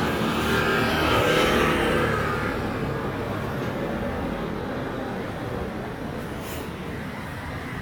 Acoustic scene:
street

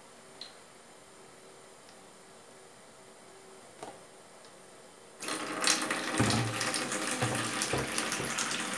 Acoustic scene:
kitchen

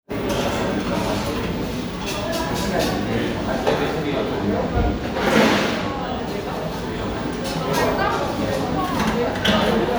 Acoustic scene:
cafe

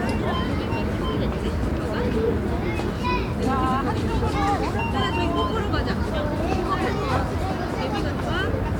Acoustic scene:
residential area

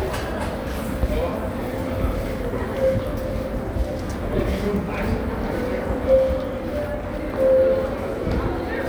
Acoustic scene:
crowded indoor space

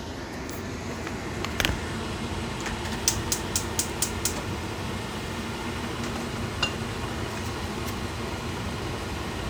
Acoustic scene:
kitchen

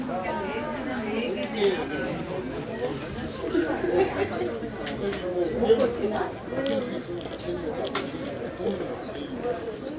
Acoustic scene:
park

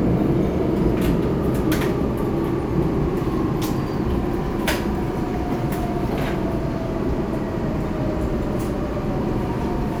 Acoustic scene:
subway train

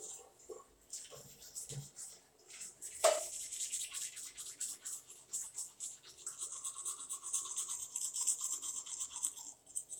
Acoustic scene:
restroom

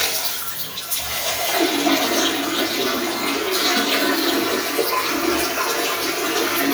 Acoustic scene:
restroom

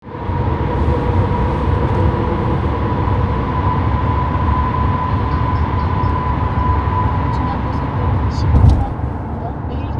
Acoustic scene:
car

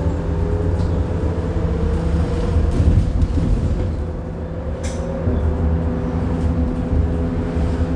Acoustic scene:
bus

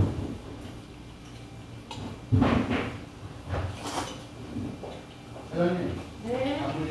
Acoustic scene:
restaurant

